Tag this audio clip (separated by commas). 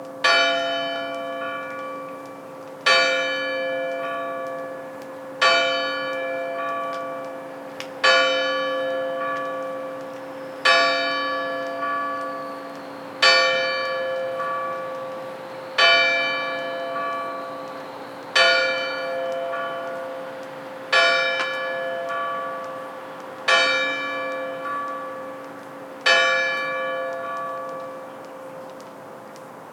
Church bell, Bell